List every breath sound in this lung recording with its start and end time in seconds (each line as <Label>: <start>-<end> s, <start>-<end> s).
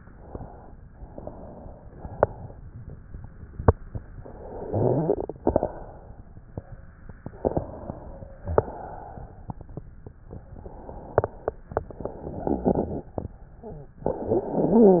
Inhalation: 0.81-1.91 s, 4.11-5.36 s, 7.18-8.42 s, 10.21-11.78 s, 13.95-15.00 s
Exhalation: 1.90-3.08 s, 5.38-6.89 s, 8.43-10.10 s, 11.78-13.96 s